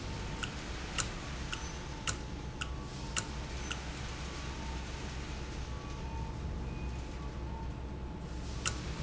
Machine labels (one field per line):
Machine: valve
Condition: normal